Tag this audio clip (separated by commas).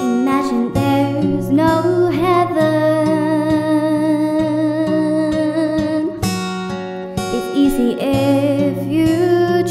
child singing